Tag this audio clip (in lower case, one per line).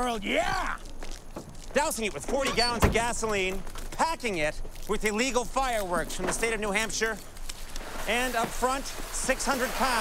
speech